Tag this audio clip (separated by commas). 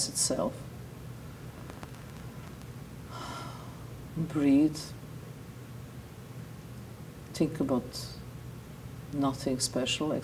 Speech